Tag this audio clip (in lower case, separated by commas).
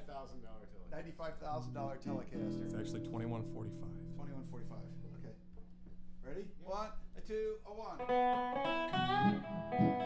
music, musical instrument, acoustic guitar, plucked string instrument, speech, guitar, electric guitar, strum